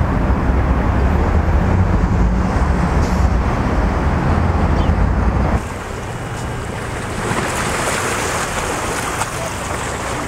The wind blows and waves crash while birds chirp